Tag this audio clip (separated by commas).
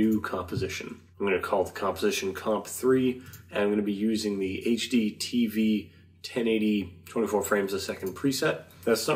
Speech